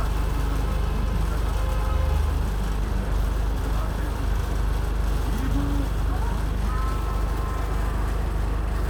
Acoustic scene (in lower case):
bus